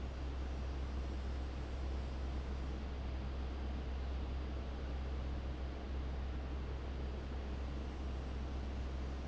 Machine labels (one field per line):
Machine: fan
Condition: abnormal